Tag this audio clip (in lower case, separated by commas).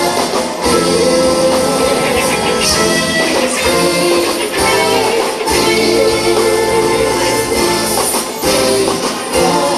music